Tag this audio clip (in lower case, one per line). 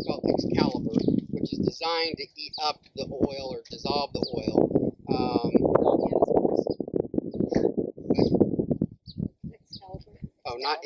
speech
outside, rural or natural
animal